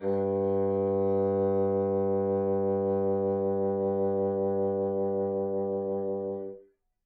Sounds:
Musical instrument, Music, woodwind instrument

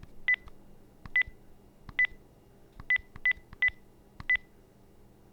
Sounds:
Telephone, Alarm

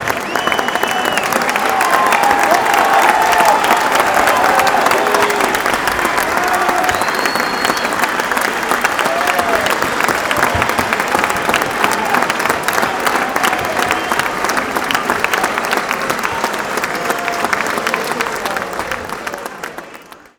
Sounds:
Human group actions, Applause, Cheering

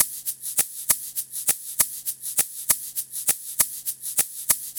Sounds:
Musical instrument, Percussion, Music, Rattle (instrument)

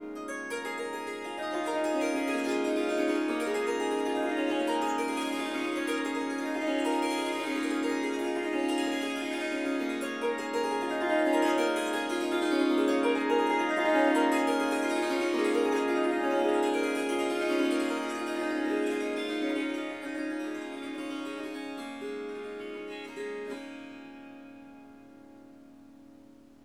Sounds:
Musical instrument, Harp, Music

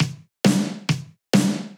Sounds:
Snare drum, Drum, Bass drum, Music, Musical instrument, Percussion

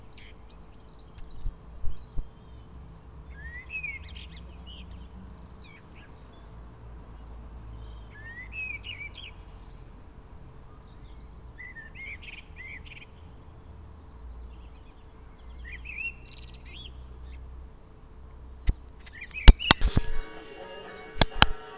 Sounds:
Bird, Animal, Wild animals, bird call

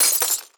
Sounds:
Shatter, Glass

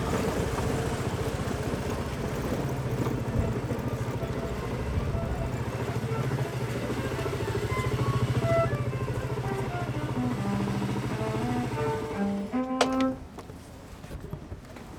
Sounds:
Engine

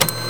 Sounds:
Mechanisms, Printer

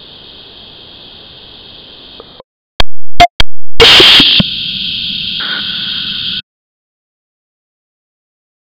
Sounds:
Hiss

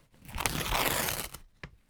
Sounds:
Tearing

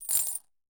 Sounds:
Coin (dropping), Domestic sounds

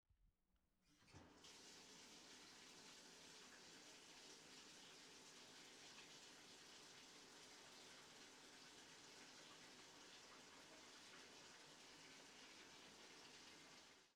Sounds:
home sounds, Bathtub (filling or washing)

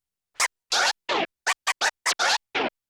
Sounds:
Music, Musical instrument, Scratching (performance technique)

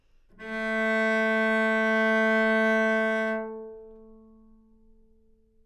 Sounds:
Musical instrument, Bowed string instrument, Music

